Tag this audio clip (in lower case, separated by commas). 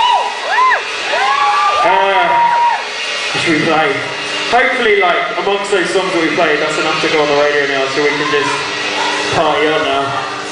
speech